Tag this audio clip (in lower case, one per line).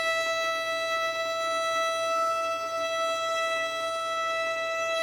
bowed string instrument
musical instrument
music